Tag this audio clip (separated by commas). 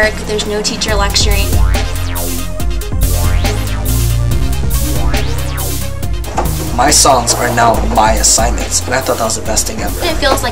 Music, Exciting music, Speech